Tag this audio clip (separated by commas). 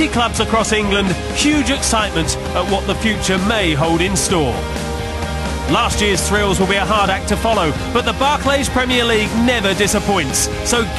Speech, Music